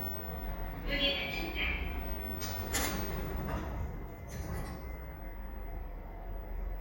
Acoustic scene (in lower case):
elevator